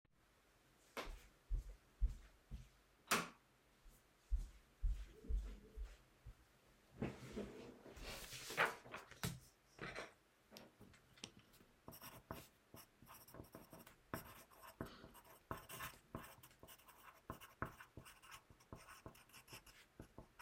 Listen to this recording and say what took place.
I walked to my light switch, turned the light on, walked to my chair and sat down. Then I grabbed a piece of paper and a pencil and started writing.